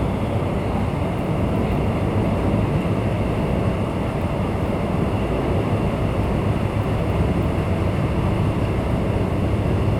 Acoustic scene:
subway train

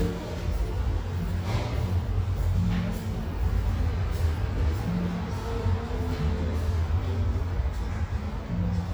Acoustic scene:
cafe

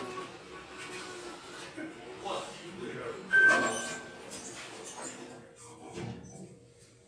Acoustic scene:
elevator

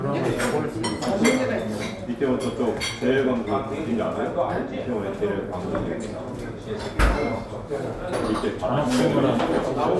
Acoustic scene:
restaurant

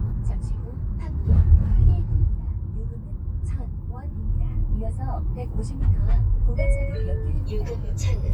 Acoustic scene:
car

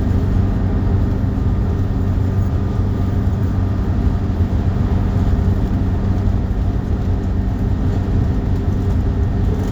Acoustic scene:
bus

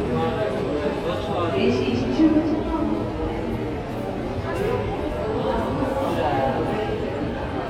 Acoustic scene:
crowded indoor space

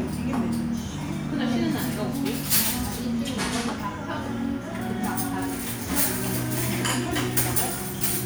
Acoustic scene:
restaurant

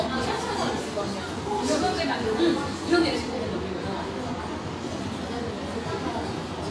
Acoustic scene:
cafe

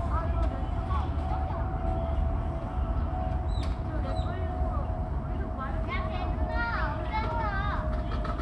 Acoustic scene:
park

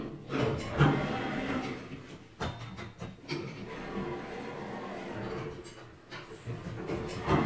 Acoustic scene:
elevator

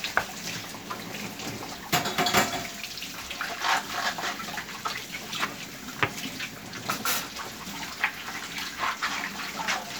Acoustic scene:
kitchen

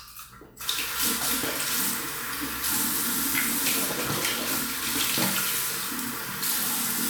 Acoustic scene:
restroom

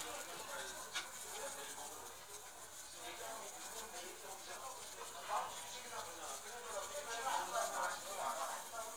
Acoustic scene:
restaurant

